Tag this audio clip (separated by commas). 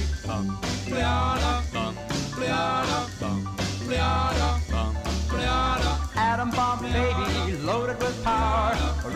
Music